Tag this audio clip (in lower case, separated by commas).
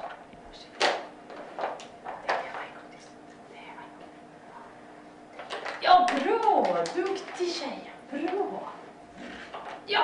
speech